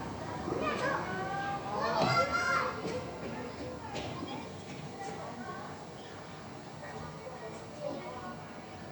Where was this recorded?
in a park